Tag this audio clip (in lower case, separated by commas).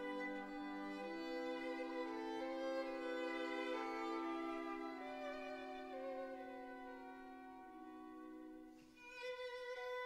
fiddle, bowed string instrument